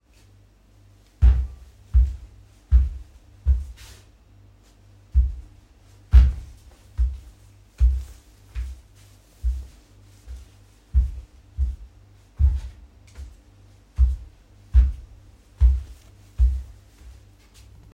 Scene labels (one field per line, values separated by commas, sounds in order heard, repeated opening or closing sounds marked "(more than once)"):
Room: hallway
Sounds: footsteps